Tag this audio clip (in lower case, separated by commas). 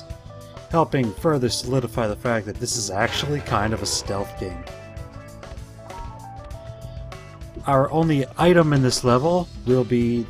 speech, music